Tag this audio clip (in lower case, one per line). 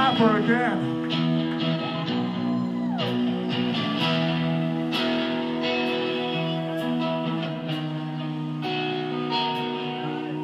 music
speech